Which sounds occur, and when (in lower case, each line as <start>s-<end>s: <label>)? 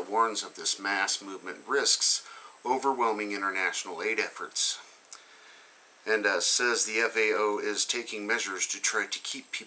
0.0s-9.6s: background noise
0.0s-2.1s: man speaking
2.6s-4.7s: man speaking
6.0s-9.6s: man speaking